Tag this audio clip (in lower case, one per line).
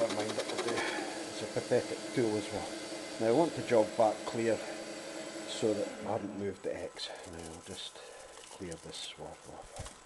tools
speech